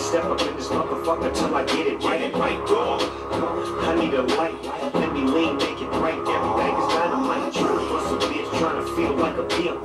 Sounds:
inside a small room, Music

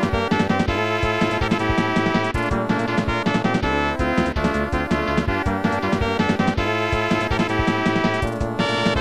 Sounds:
Rhythm and blues, Music

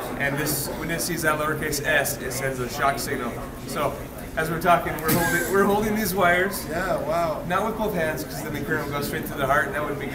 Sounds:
Speech, Conversation

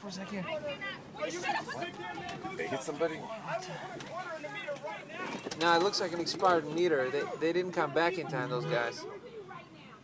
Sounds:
Speech

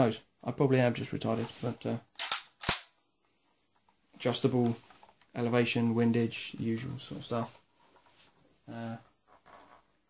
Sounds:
inside a small room, Speech

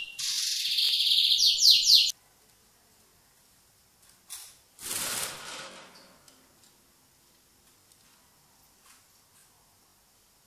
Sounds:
bird squawking

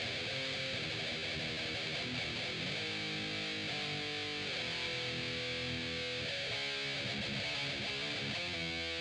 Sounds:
Musical instrument, Music, Guitar, Plucked string instrument, Strum

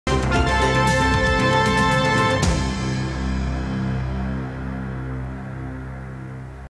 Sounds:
Television, Music

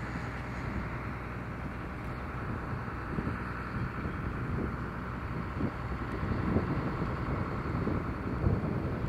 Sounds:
Vehicle, Aircraft

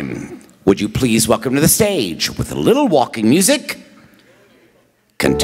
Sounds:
Speech

